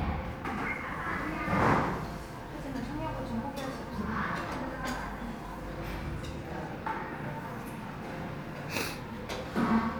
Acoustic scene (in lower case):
crowded indoor space